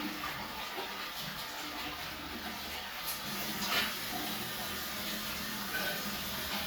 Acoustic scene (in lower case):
restroom